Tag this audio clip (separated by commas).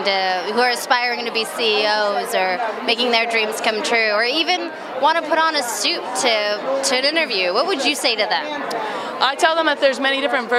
Speech